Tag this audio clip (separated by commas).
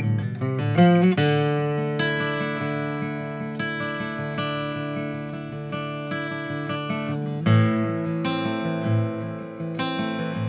Guitar, Strum, playing acoustic guitar, Acoustic guitar, Music, Plucked string instrument, Musical instrument